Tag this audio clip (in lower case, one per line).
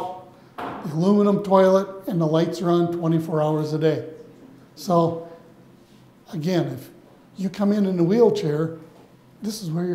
inside a small room
speech